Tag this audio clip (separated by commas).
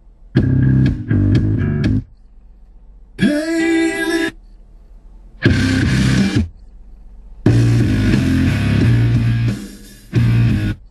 Silence, Music